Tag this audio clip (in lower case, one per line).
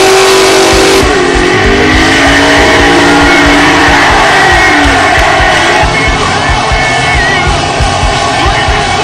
music